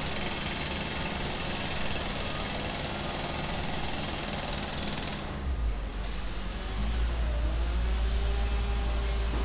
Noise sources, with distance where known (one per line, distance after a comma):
jackhammer, far
unidentified powered saw, far